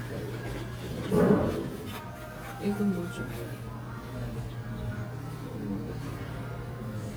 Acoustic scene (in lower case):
cafe